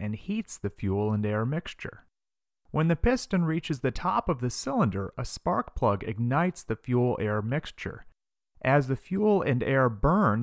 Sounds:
speech

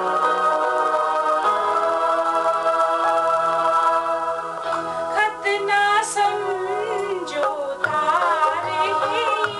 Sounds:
singing

